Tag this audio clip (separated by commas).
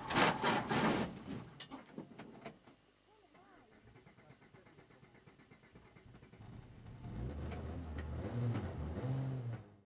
Car, Vehicle